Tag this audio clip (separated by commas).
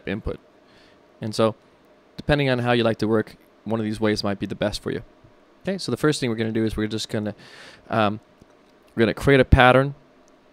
Speech